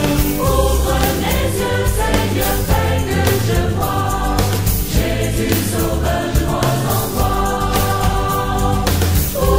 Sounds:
music

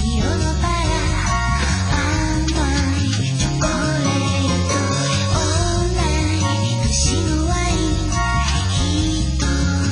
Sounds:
music

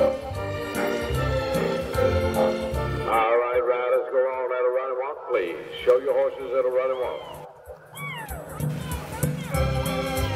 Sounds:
music
speech

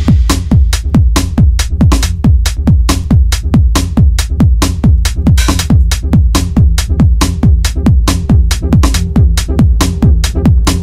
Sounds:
music

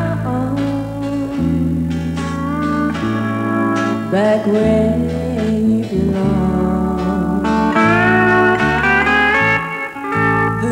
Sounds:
steel guitar
music

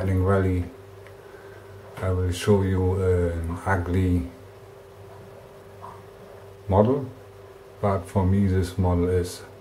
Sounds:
speech

